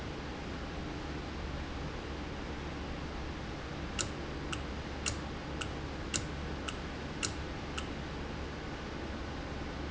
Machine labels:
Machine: valve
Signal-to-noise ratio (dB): -6 dB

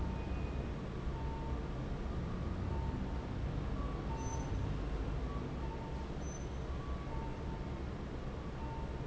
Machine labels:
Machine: fan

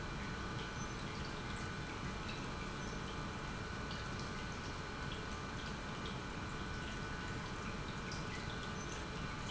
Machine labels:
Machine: pump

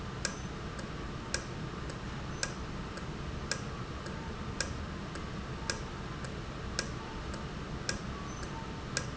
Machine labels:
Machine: valve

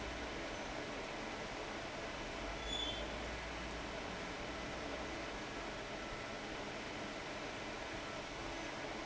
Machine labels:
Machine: fan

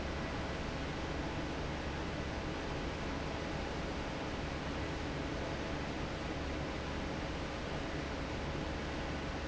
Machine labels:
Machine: fan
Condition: normal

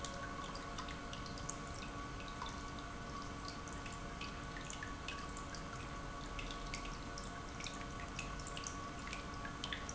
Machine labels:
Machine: pump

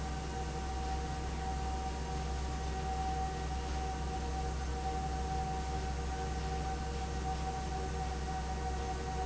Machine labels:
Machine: fan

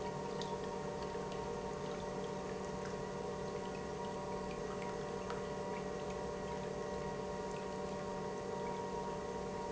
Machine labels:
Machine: pump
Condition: normal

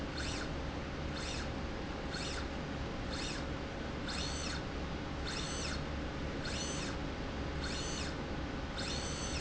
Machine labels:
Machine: slide rail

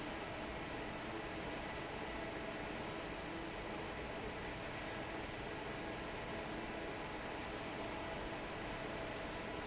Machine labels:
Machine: fan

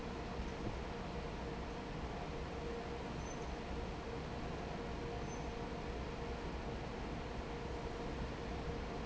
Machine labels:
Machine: fan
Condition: normal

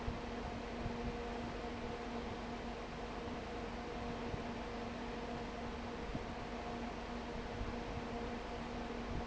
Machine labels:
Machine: fan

